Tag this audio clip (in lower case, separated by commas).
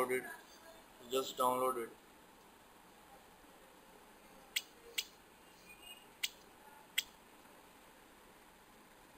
speech, inside a small room